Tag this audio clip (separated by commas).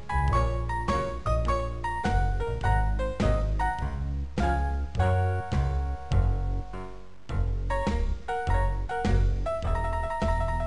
Music